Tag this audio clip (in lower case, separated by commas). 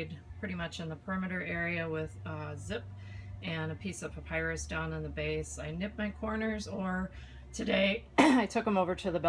speech